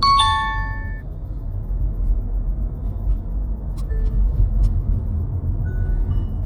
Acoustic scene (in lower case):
car